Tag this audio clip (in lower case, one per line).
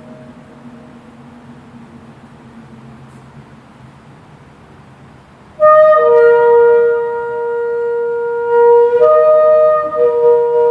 shofar
woodwind instrument